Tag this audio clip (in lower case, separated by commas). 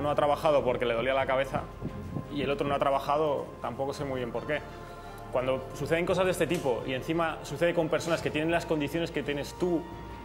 speech, music